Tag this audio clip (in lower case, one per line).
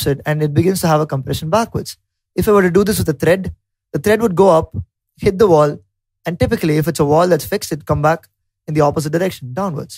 speech